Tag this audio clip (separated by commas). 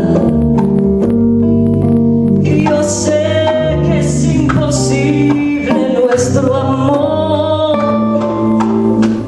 Double bass, Jazz, Musical instrument, Singing, Guitar, Bowed string instrument, Cello, Music, Keyboard (musical)